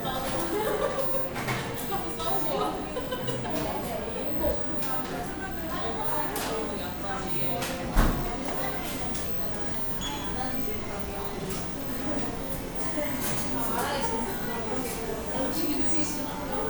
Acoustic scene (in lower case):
cafe